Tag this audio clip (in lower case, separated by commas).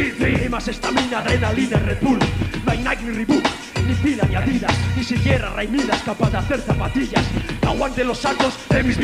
music